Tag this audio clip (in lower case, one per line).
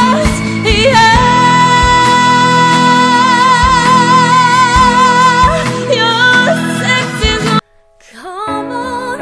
singing
music